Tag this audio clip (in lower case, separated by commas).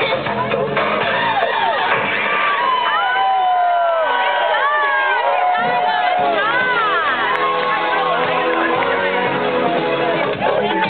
music, crowd, people crowd, speech